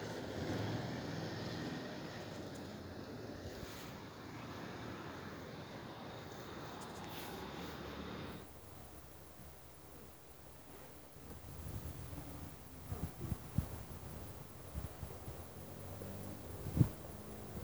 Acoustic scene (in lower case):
residential area